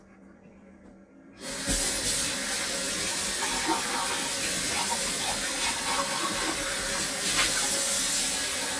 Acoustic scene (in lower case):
kitchen